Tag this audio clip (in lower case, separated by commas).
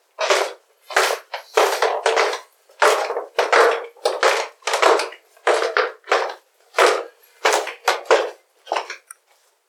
walk